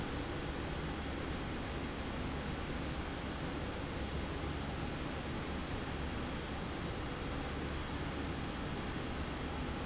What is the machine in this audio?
slide rail